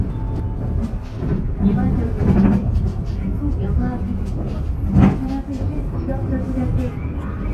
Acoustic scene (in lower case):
bus